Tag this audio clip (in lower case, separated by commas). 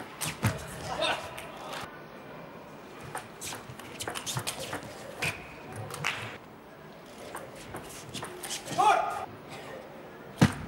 inside a public space, speech